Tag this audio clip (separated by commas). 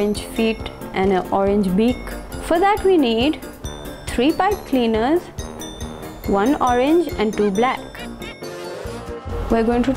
Speech, Music